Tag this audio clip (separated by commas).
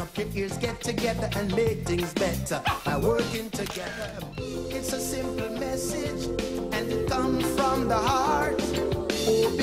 Music